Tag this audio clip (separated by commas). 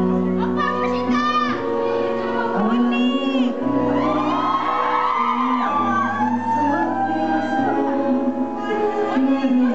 Speech, Female singing, Music